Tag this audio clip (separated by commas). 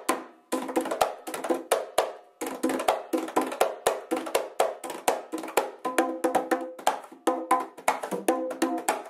playing bongo